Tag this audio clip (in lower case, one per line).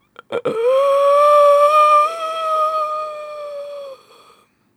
breathing
respiratory sounds